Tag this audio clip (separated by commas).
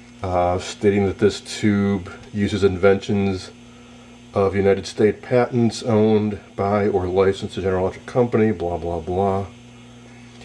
Speech, inside a small room